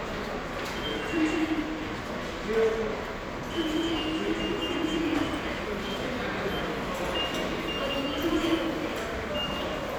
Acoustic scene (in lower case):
subway station